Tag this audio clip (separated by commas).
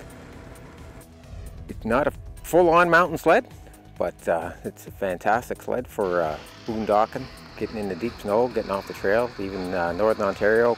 Music, Speech